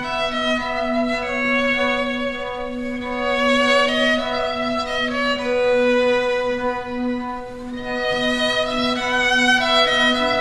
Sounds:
violin, music

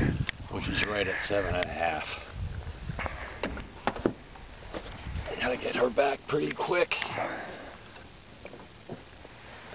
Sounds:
gurgling, speech

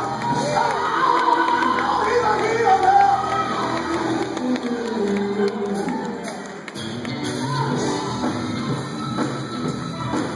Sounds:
speech, music, male singing

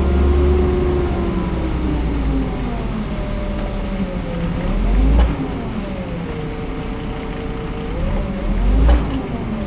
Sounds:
sound effect

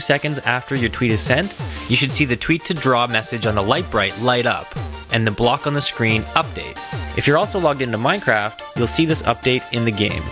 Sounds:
music, speech

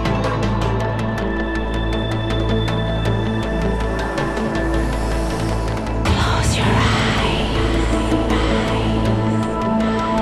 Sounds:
music

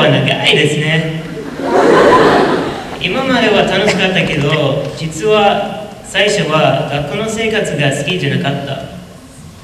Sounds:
man speaking, monologue, speech

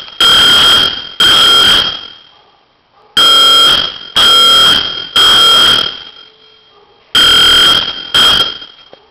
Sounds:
buzzer

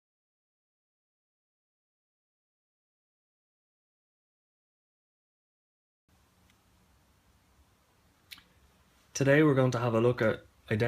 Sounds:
speech

